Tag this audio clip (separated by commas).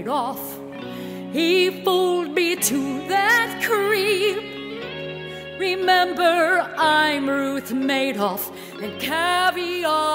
Music